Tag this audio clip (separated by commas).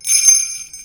Bell